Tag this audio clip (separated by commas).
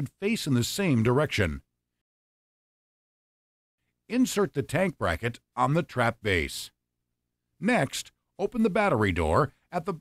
Speech